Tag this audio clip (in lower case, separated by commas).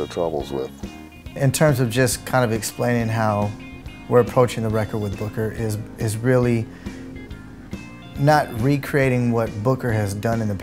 speech, music, sound effect